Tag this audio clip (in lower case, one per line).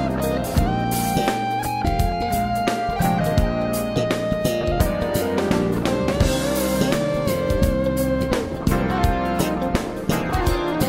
steel guitar
music